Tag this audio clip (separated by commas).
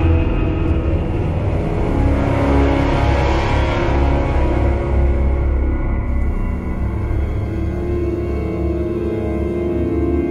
Music